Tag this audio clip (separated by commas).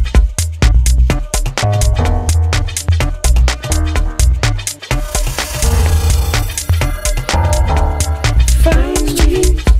Music